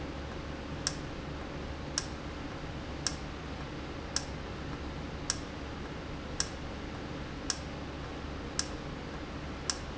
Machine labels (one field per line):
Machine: valve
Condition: normal